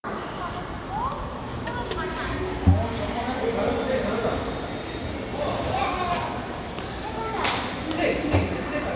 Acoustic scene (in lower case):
crowded indoor space